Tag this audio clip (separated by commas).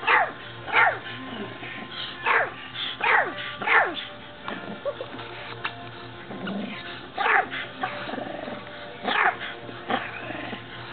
Dog, Bark, Animal, Music